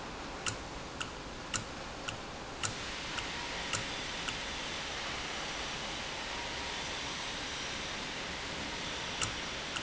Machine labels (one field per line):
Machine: valve